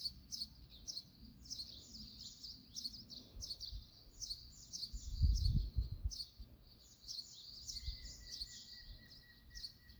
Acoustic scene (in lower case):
park